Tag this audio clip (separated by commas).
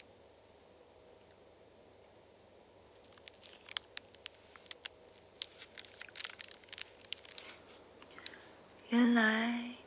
Speech